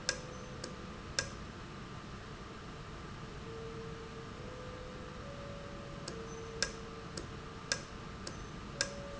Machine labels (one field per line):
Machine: valve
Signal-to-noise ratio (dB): 0 dB